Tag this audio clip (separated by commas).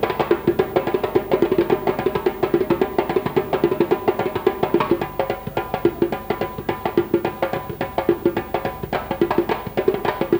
playing djembe